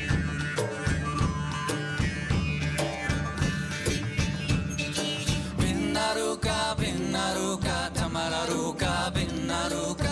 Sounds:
orchestra, music

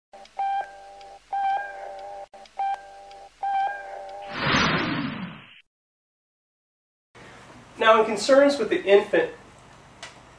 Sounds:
speech

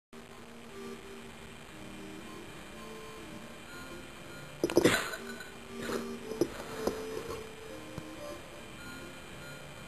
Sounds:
music, animal, cat

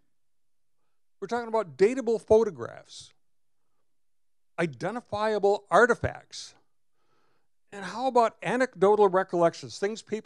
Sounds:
speech

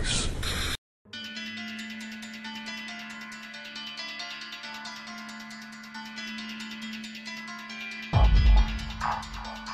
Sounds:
music

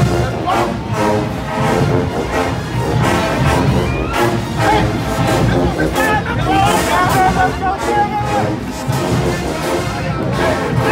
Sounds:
people marching

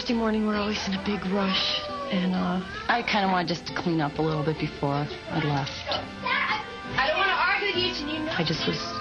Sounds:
speech, music

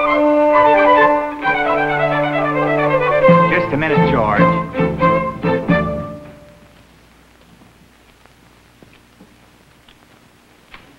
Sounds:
orchestra, speech, music

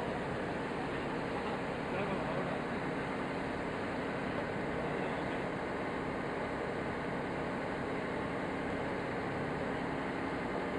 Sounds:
motorboat, speech, water vehicle

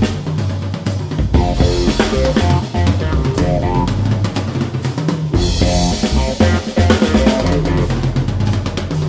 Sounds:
music, musical instrument, hi-hat, snare drum, cymbal, drum, jazz, drum kit, drum roll

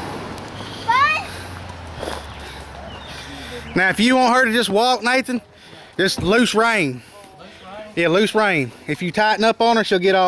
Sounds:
speech, clip-clop, horse

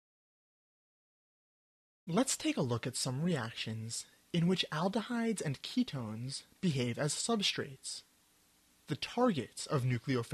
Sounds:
speech, narration

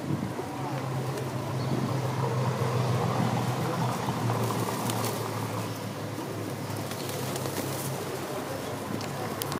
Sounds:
outside, urban or man-made, bird, outside, rural or natural, dove

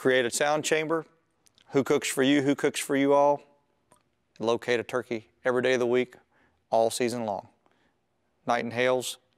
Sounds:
speech

